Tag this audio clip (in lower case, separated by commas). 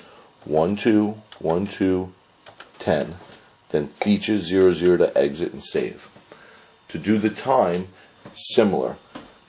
speech, telephone